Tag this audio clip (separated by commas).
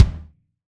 Drum, Musical instrument, Music, Percussion